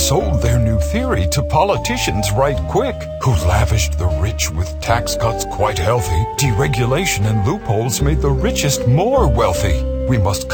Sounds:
Music, Speech

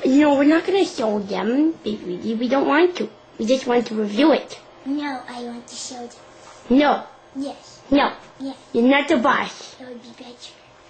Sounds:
Speech

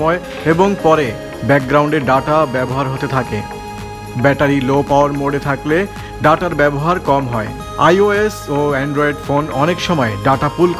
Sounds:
cell phone buzzing

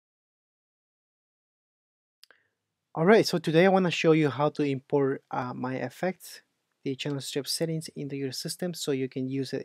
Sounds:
Speech

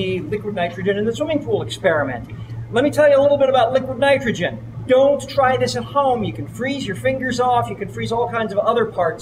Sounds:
Speech

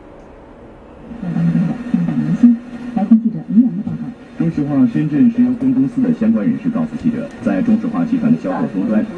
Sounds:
Speech

